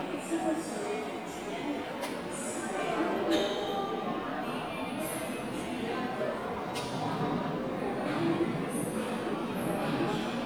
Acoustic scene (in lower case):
subway station